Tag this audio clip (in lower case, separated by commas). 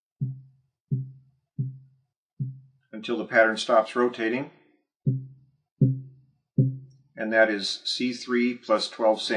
speech